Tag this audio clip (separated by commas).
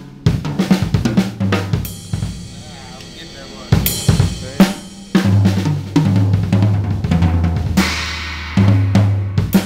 Bass drum, Drum, Percussion, Drum kit, Rimshot, Snare drum